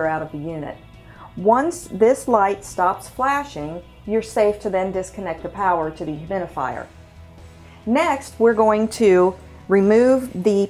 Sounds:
music, speech

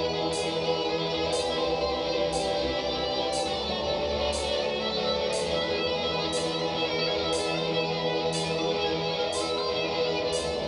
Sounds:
music

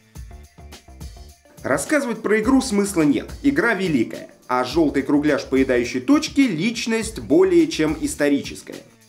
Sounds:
speech, music

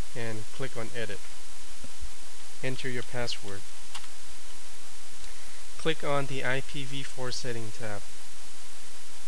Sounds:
hum

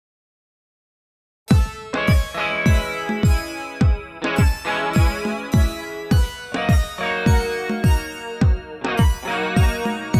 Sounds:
music

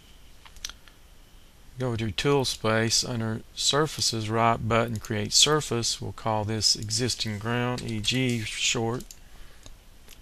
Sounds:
speech

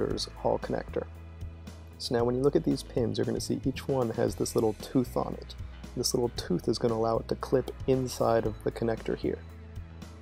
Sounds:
speech, music

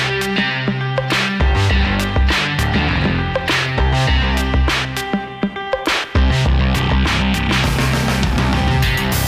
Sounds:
music

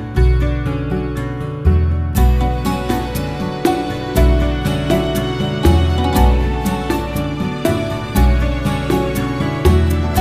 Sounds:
music

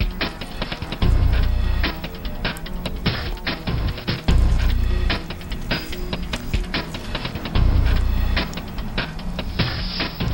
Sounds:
music

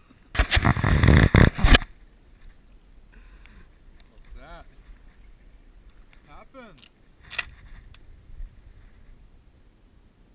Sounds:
speech

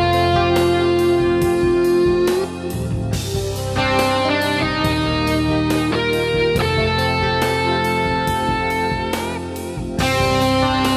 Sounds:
music, guitar

